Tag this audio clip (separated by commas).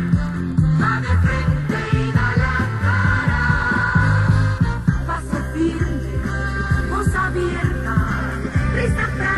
Music